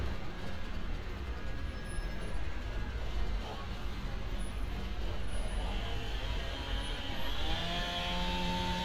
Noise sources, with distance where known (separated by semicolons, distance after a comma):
small-sounding engine, near; unidentified powered saw, near